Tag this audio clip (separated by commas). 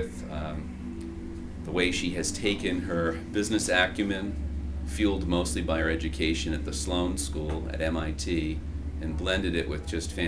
Music, Speech